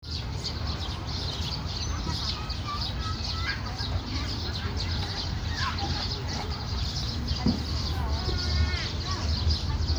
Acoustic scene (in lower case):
park